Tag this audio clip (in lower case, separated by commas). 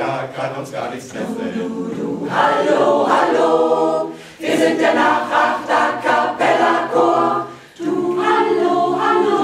music, jazz